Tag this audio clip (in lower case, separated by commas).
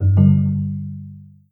telephone, alarm, ringtone